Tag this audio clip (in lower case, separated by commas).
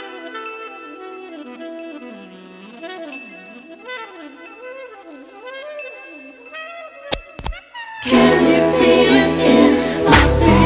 music